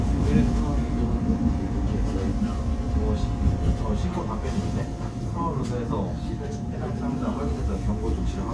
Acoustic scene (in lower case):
subway train